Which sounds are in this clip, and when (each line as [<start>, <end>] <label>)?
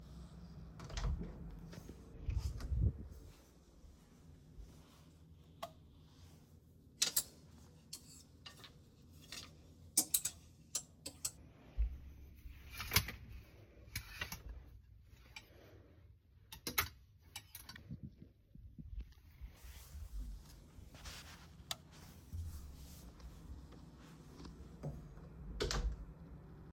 [0.78, 2.06] wardrobe or drawer
[5.58, 5.74] light switch
[21.67, 21.79] light switch
[24.95, 26.03] wardrobe or drawer